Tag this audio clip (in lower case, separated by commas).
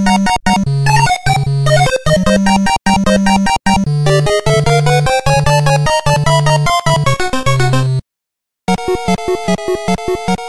video game music, music